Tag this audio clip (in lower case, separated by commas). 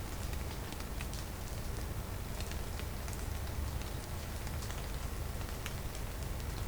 rain, water